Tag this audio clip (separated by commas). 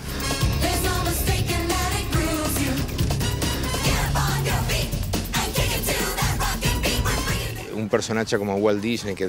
Music, Mouse, Speech